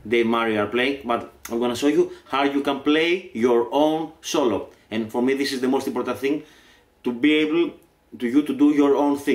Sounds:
Speech

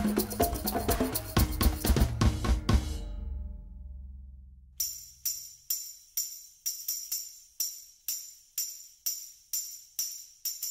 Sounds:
playing tambourine

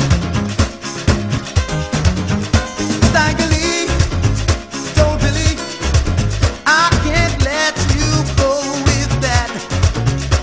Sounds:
Music

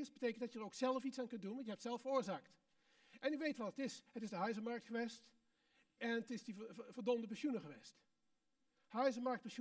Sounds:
Speech

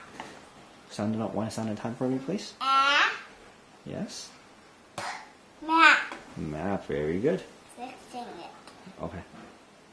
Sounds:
Speech

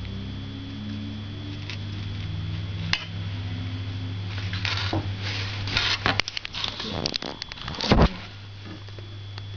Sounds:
inside a small room

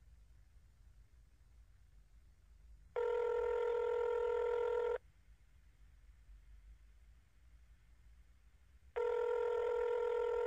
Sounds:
Telephone

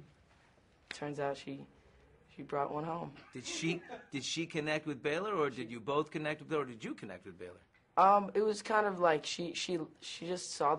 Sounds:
Speech

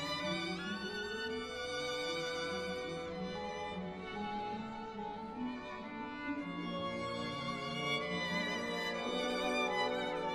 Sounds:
Violin, Music, Musical instrument

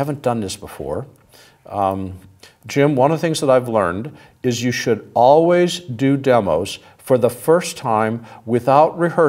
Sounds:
Speech

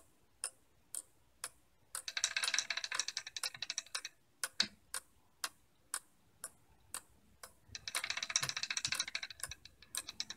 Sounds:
Tick-tock

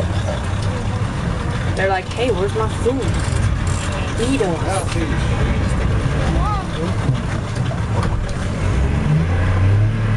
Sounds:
Speech, Vehicle

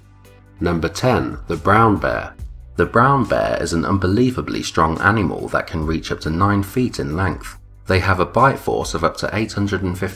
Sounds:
Music, Speech

